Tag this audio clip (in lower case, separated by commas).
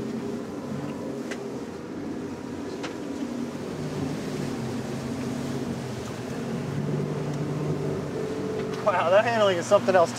speedboat, boat